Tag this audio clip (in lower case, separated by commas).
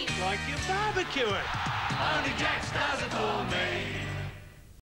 music, speech